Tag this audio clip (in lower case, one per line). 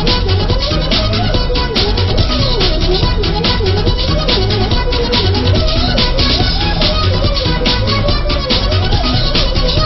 music